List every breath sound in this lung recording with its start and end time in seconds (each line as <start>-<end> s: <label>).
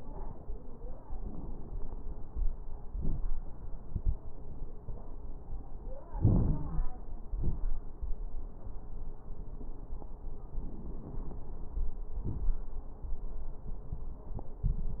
6.14-6.83 s: inhalation
6.14-6.83 s: crackles
7.36-7.67 s: exhalation
7.36-7.67 s: crackles
10.57-11.45 s: inhalation
10.57-11.45 s: crackles
12.13-12.67 s: exhalation
12.13-12.67 s: crackles